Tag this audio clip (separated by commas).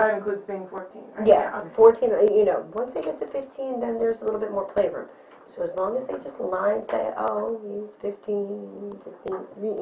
Speech